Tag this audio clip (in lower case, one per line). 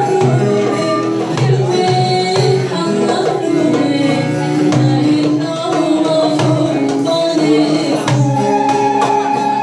music
speech
blues
middle eastern music
traditional music